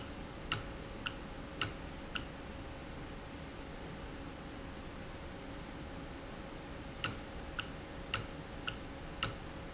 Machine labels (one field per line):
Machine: valve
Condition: normal